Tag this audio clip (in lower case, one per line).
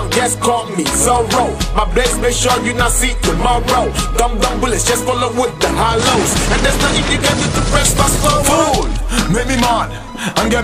music
dance music
funk
pop music